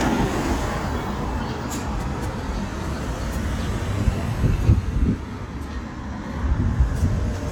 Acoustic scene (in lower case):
street